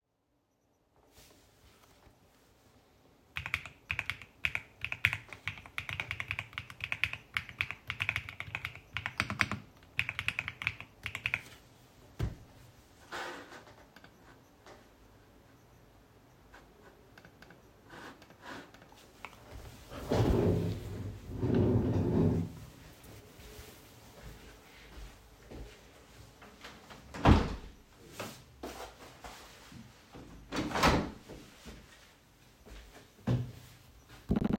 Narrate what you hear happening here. I typed on my keyboard, then I moved stood up from my chair and walked towards the window to open it